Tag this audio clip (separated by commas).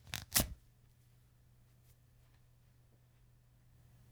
Tearing